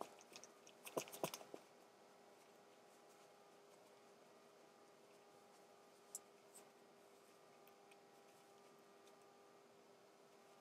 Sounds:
Silence, inside a small room

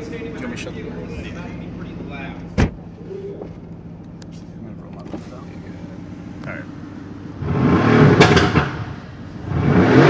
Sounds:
Vehicle, Speech, Car, Motor vehicle (road), inside a public space

